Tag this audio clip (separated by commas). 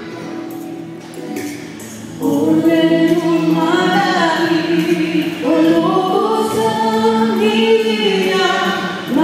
Music, Female singing